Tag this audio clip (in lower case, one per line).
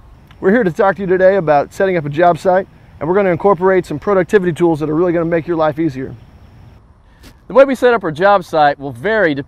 speech